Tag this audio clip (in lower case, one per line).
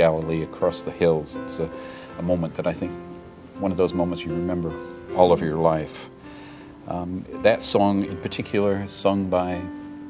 speech
music